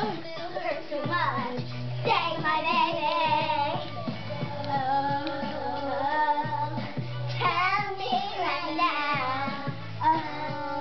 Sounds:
Dance music, Music

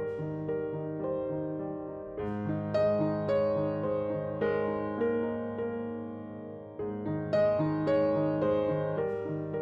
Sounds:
hair dryer drying

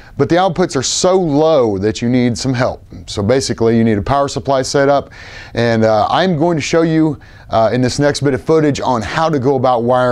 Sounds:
Speech

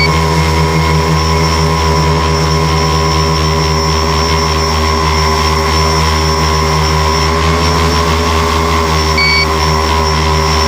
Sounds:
Vehicle

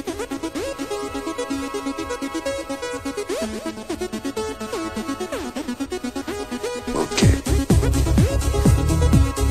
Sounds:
Music, Techno, Electronic music

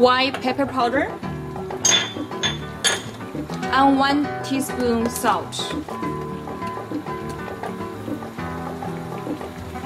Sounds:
inside a small room, Speech, Music

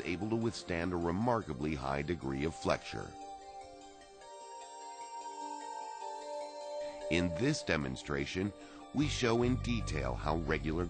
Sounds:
Speech, Music

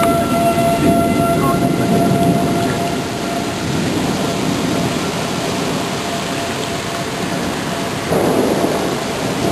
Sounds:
Waterfall

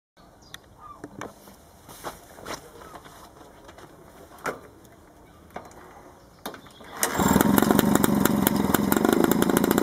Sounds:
Motorcycle, Vehicle, outside, rural or natural

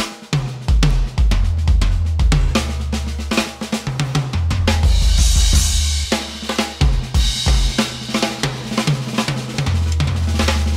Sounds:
Snare drum, Music, Bass drum, Cymbal

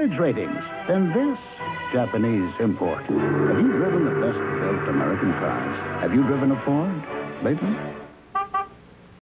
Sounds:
Music, Vehicle, Speech

